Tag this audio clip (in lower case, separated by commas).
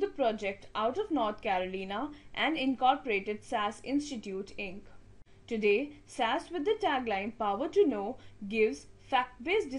speech